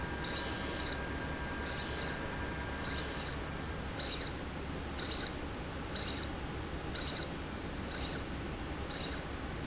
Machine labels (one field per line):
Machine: slide rail